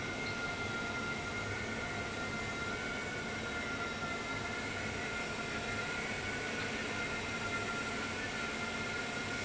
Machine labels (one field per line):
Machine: fan